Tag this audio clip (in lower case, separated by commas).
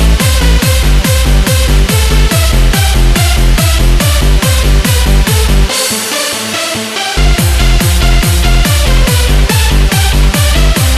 music